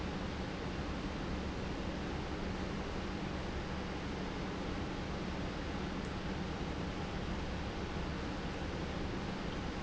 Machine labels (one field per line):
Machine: pump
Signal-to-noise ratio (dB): -6 dB